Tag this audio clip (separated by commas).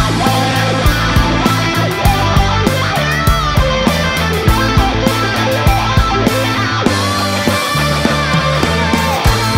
Rock music, Musical instrument, Music